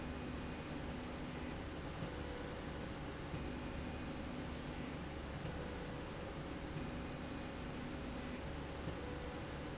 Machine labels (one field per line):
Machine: slide rail